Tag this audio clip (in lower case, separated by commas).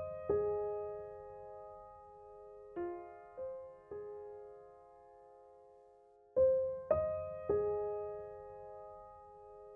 music